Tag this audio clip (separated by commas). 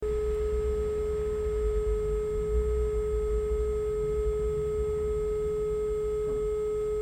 Telephone, Alarm